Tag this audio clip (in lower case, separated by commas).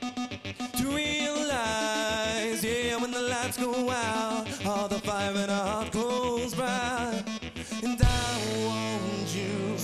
theme music, music